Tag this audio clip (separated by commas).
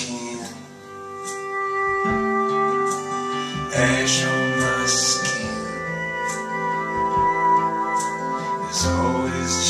Musical instrument, Plucked string instrument, Music, Steel guitar, Guitar